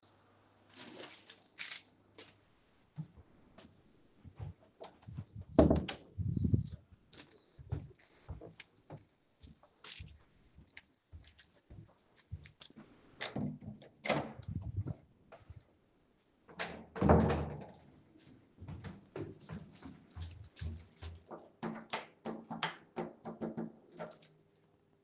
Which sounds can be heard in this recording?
keys, door, footsteps